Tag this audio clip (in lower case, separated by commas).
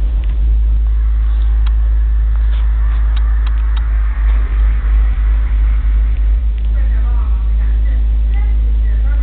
speech